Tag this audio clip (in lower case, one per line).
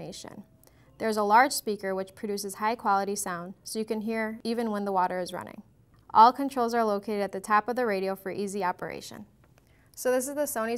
speech